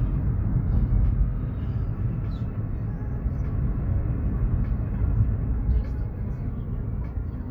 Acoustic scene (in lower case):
car